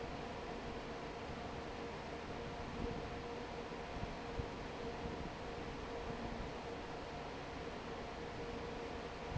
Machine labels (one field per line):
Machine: fan